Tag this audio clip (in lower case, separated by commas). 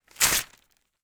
tearing